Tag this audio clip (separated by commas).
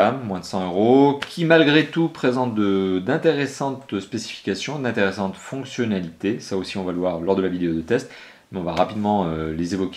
Speech